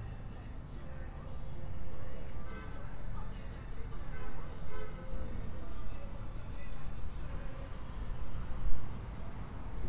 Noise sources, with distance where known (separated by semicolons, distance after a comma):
car horn, far; music from an unclear source, far